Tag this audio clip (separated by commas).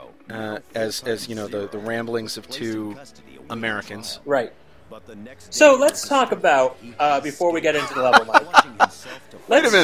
Speech